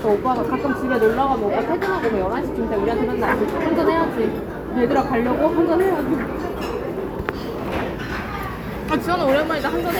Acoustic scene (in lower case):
restaurant